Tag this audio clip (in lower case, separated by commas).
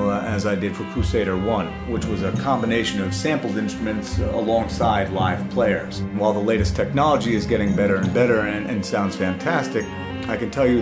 speech, music, tender music